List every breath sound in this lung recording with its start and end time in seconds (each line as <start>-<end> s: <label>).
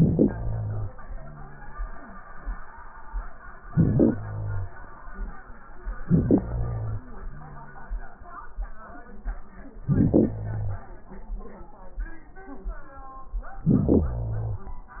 0.00-0.93 s: inhalation
0.92-1.85 s: exhalation
0.92-1.85 s: wheeze
3.63-4.77 s: inhalation
5.99-7.06 s: inhalation
7.06-8.13 s: exhalation
7.06-8.13 s: wheeze
9.83-10.90 s: inhalation
13.63-15.00 s: inhalation